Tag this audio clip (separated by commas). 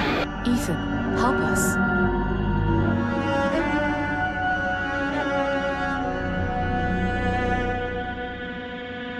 Cello